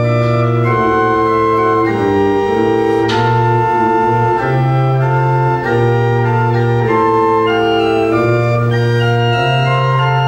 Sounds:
Organ, Music, Keyboard (musical), Musical instrument, Piano

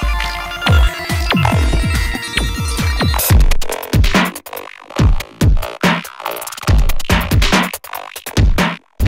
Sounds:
Drum machine, Music

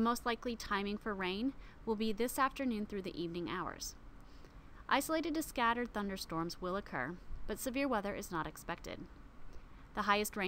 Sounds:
Speech

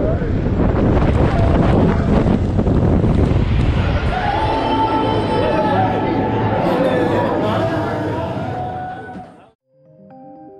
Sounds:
roller coaster running

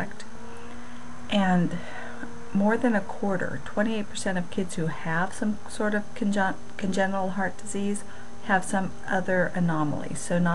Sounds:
Speech

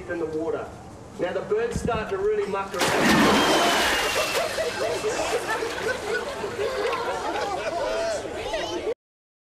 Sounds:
Speech

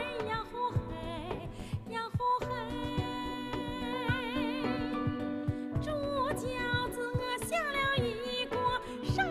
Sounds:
Music, Female singing

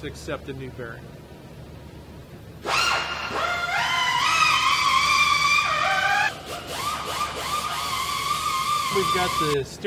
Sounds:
Speech, inside a large room or hall

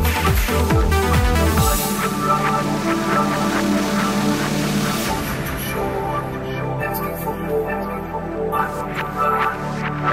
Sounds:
Music

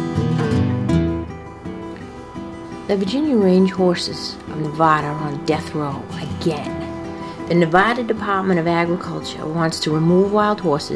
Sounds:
Music, Speech

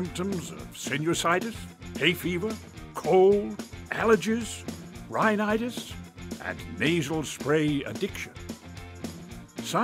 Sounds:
Music, Speech

